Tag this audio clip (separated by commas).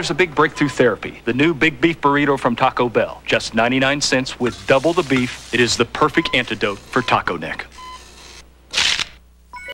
Speech